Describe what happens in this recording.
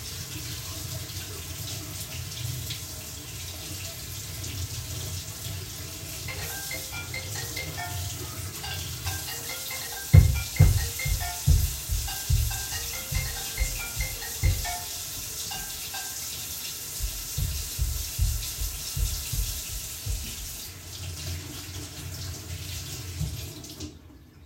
I was washing my hands when my phone started ringing. I hurried over to it, forgetting to turn the tap off. I walked back to the bathroom to turn the tap off.